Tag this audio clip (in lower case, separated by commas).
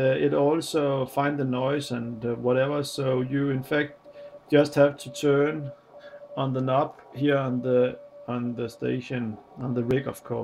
speech, radio